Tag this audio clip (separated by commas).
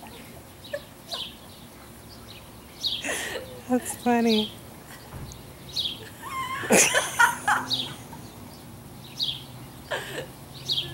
Domestic animals, Animal